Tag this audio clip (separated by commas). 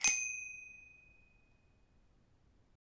Bicycle bell, Bicycle, Vehicle, Bell, Alarm